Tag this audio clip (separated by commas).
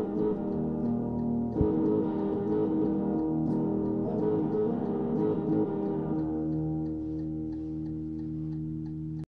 Music